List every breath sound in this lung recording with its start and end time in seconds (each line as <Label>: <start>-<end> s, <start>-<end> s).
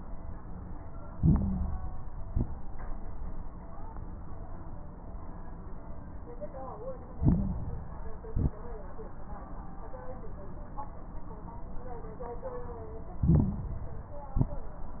Inhalation: 1.10-2.16 s, 7.16-8.21 s, 13.22-14.27 s
Exhalation: 2.18-2.69 s, 8.27-8.66 s, 14.31-14.71 s
Crackles: 1.10-2.16 s, 2.18-2.69 s, 7.16-8.21 s, 8.27-8.66 s, 13.22-14.27 s, 14.31-14.71 s